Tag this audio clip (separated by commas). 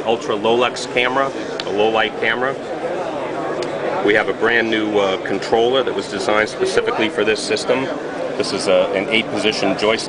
Speech